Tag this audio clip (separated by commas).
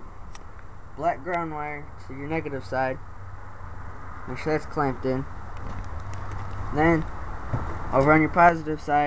Speech